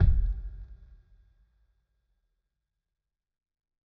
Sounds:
musical instrument
music
drum
bass drum
percussion

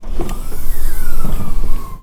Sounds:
car
vehicle
motor vehicle (road)

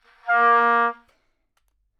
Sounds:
woodwind instrument
music
musical instrument

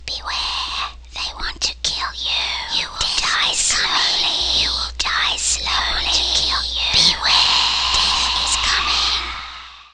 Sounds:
human voice
speech
whispering

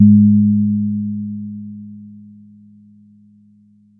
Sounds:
musical instrument
music
keyboard (musical)
piano

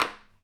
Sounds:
tap

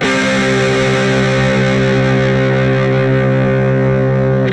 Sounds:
guitar
electric guitar
music
plucked string instrument
musical instrument

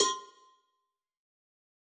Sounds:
bell
cowbell

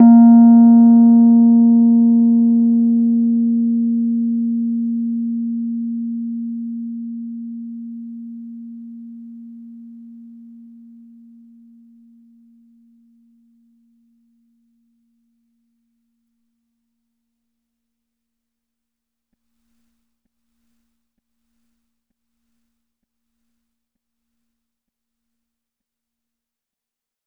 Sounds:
piano
musical instrument
music
keyboard (musical)

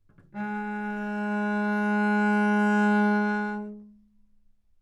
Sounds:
music
musical instrument
bowed string instrument

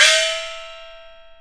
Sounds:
music
percussion
gong
musical instrument

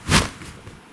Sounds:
swoosh

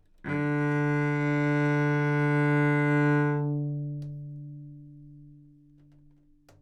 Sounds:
bowed string instrument
musical instrument
music

